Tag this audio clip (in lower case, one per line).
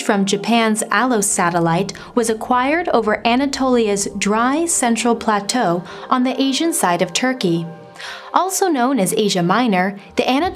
speech
music